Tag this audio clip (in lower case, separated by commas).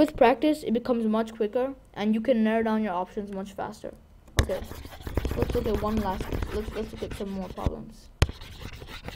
speech